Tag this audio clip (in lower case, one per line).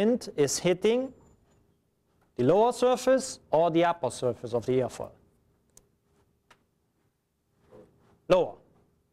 speech